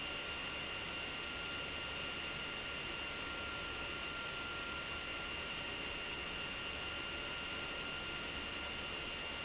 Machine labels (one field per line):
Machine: pump